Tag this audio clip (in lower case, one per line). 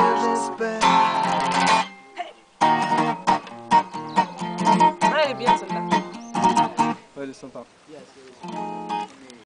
speech
music
female singing